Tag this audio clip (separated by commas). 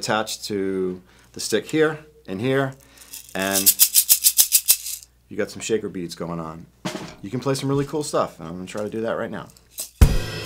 Music, Speech